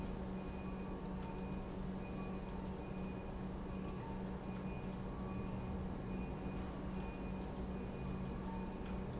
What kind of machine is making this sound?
pump